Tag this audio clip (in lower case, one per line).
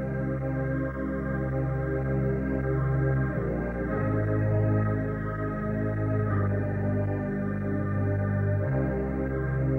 music